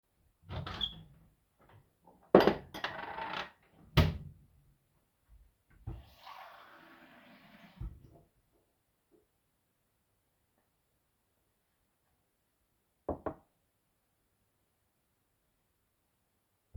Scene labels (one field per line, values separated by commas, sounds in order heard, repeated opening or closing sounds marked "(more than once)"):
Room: kitchen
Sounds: wardrobe or drawer (more than once), cutlery and dishes, running water